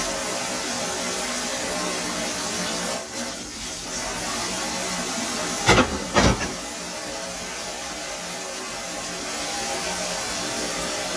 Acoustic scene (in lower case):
kitchen